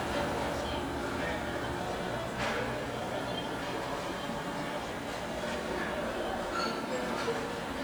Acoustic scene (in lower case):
restaurant